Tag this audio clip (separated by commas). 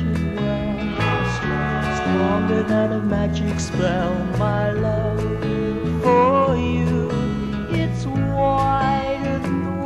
Music